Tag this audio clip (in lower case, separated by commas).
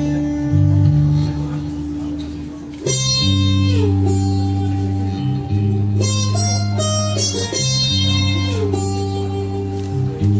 music, speech